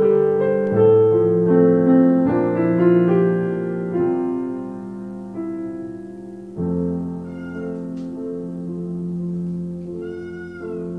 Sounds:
meow, music

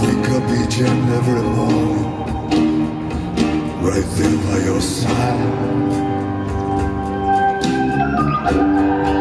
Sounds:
music

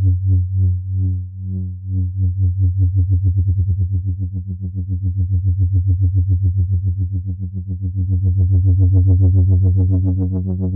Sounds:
music, playing synthesizer, synthesizer, musical instrument

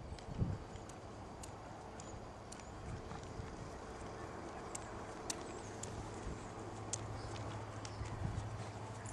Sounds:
horse clip-clop, clip-clop, animal

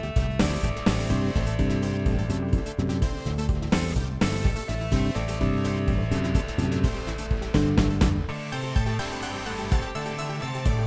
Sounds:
music

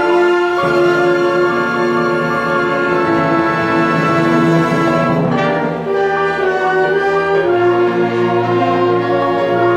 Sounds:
musical instrument, inside a large room or hall, orchestra, keyboard (musical), music

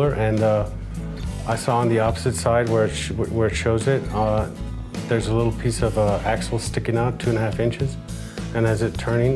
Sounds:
music, speech

